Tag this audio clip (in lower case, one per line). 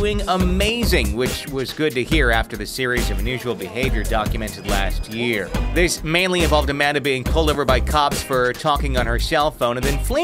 music
speech